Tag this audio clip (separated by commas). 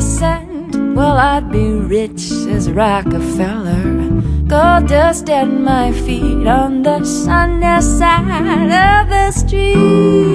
Music